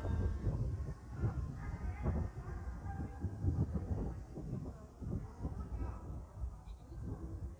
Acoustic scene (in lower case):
park